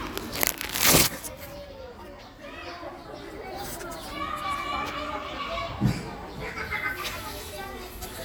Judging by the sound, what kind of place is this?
park